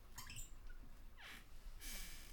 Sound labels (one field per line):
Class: cupboard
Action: opening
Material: wooden